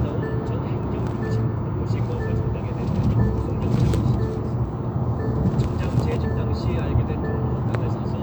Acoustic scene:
car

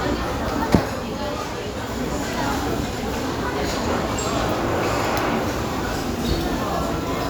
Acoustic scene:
restaurant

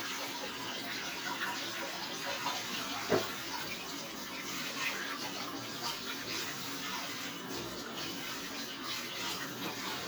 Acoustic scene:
kitchen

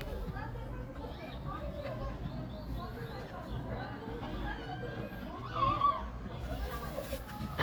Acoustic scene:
park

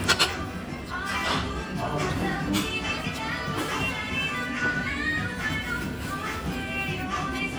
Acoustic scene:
restaurant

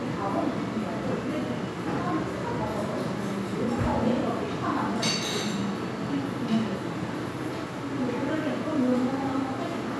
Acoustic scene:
crowded indoor space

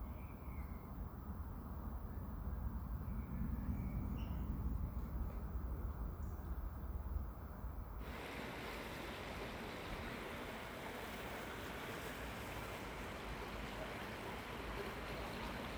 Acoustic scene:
park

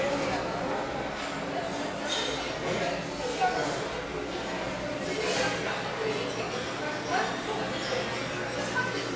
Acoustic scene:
restaurant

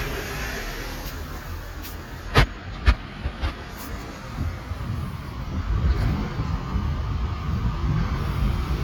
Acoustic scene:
street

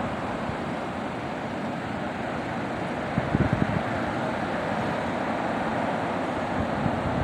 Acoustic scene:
street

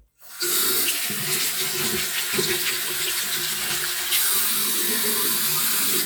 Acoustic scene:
restroom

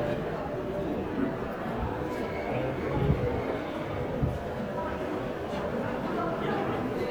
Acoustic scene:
crowded indoor space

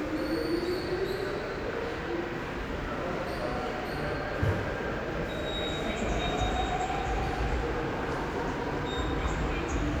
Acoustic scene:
subway station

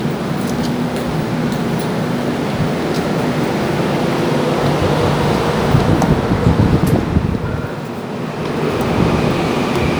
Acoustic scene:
subway station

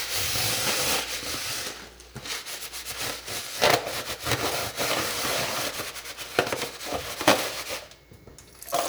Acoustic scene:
kitchen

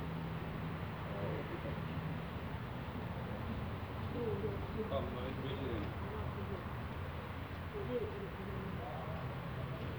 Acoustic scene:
residential area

